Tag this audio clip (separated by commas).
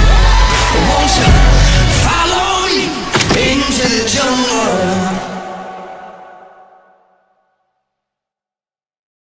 Music